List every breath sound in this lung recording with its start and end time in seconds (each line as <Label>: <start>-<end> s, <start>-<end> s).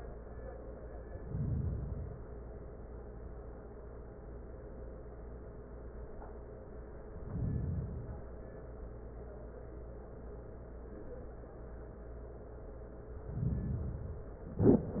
Inhalation: 1.17-2.38 s, 7.20-8.41 s, 13.11-14.50 s